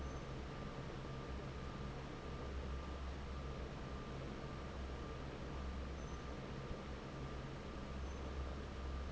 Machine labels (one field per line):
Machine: fan